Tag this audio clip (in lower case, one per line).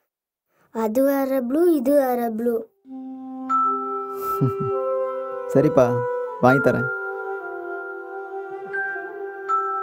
inside a small room
music
speech